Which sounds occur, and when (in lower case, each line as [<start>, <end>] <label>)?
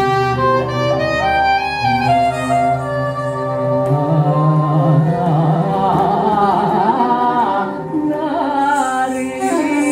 [0.00, 9.91] music
[1.78, 7.87] male singing
[2.18, 3.44] rattle
[8.08, 9.91] male singing
[8.49, 9.91] rattle